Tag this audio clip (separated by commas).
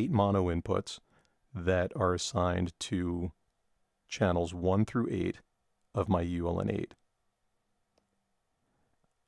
Speech